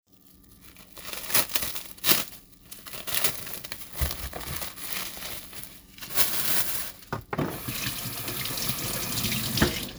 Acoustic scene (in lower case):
kitchen